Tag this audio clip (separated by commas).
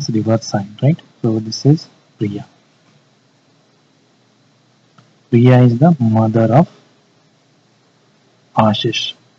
Speech